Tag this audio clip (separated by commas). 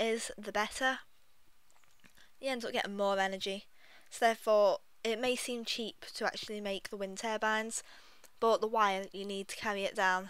Speech